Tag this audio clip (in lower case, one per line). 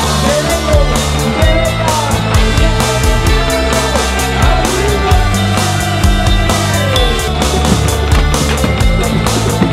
music